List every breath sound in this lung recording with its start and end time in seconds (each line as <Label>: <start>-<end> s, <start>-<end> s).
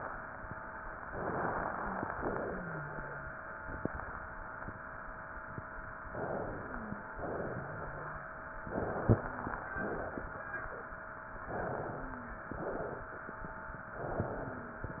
Inhalation: 1.10-2.15 s, 6.08-7.19 s, 8.63-9.74 s, 11.42-12.45 s, 13.89-14.96 s
Exhalation: 2.15-3.31 s, 7.17-8.27 s, 9.74-10.84 s, 12.51-13.39 s, 14.96-15.00 s
Wheeze: 1.75-2.14 s, 2.45-3.34 s, 6.41-7.20 s, 7.47-8.26 s, 9.13-9.67 s, 11.95-12.48 s, 14.29-14.81 s